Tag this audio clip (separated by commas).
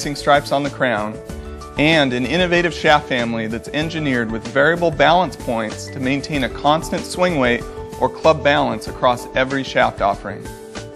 Music, Speech